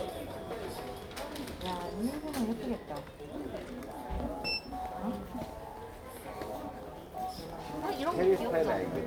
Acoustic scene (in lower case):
crowded indoor space